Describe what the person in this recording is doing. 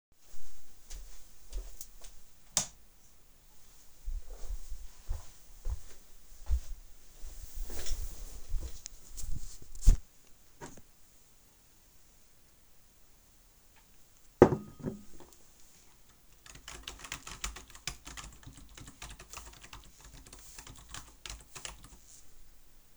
I walked into a room, switched the lights on and walked to the desk. I sat down and placed the phone on the desk. I picked up a glas, took a sip and set it back down. Then I started typing.